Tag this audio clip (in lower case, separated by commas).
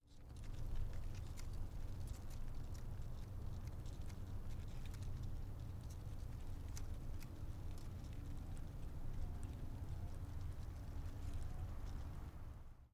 wind